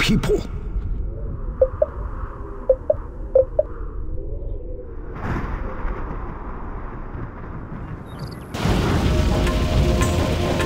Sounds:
speech, music

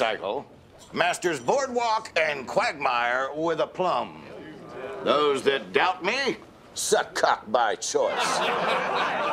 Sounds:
speech

